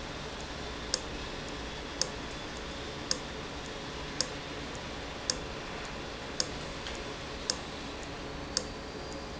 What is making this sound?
valve